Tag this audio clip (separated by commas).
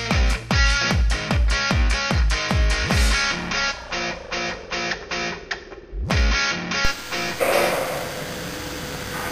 Music